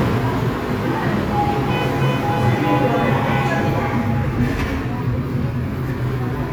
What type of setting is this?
subway station